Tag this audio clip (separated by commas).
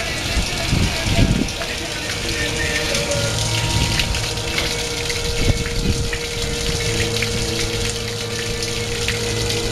Water